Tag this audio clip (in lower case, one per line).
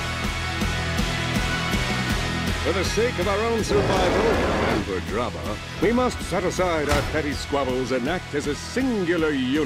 speech
music